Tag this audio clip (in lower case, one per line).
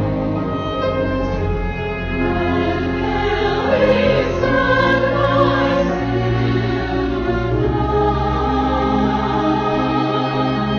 music
christmas music